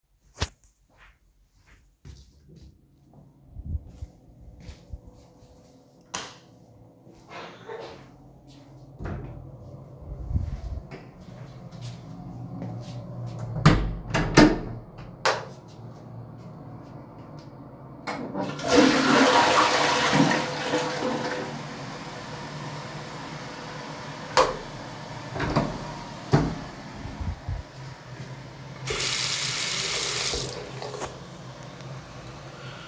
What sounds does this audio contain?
footsteps, light switch, door, toilet flushing, running water